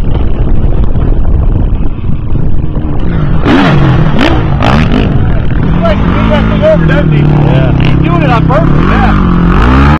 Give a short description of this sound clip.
An engine rumbling and taking off with men talking in the background